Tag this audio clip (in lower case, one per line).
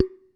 glass